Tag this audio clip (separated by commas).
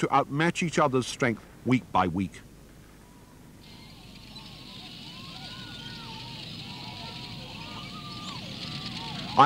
outside, rural or natural, Speech